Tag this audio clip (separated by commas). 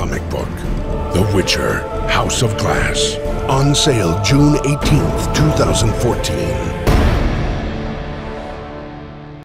Speech, Music